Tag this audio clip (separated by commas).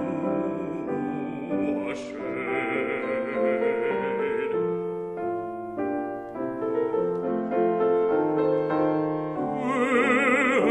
Music